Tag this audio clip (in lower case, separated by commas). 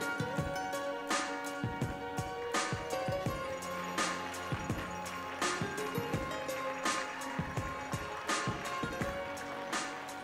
music